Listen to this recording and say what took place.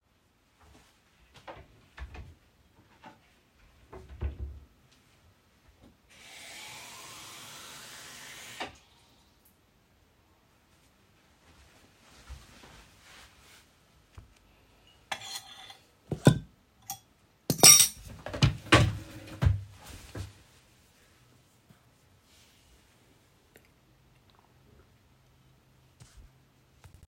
I opened a kitchen cabinet, took out a cup, and closed the cabinet. Then I filled the cup with water at the sink, walked to the table with cuttery which I palced on the table, sat down, and drank some water.